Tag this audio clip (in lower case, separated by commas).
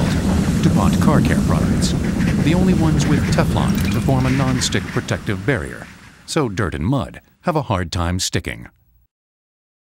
speech